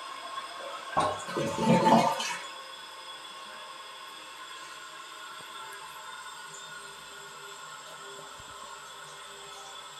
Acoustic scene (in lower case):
restroom